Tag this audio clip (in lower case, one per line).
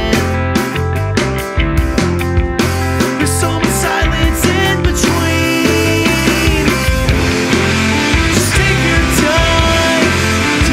soundtrack music
music